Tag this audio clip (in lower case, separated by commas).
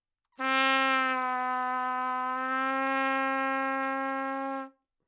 musical instrument, brass instrument, music, trumpet